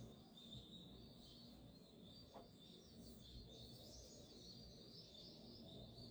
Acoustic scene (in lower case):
park